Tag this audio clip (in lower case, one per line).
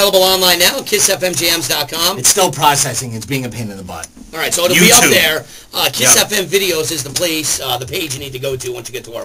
speech